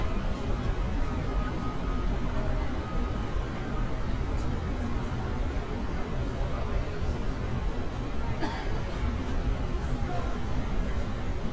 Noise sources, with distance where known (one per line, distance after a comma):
unidentified human voice, far